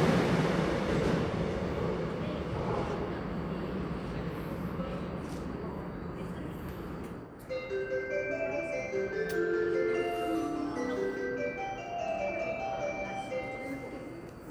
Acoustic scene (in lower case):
subway station